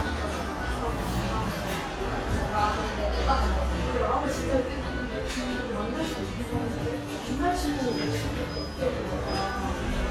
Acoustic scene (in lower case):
cafe